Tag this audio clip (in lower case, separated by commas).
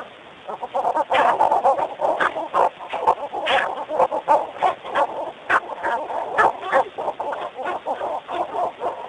fowl